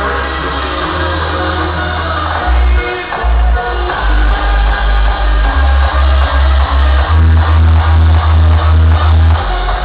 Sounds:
disco
music

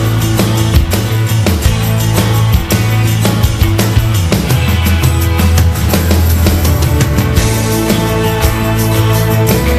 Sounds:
music

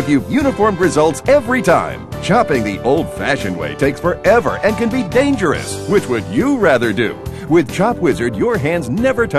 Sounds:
music
speech

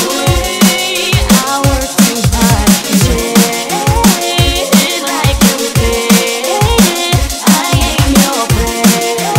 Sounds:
music

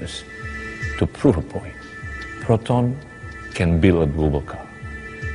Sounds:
music
speech

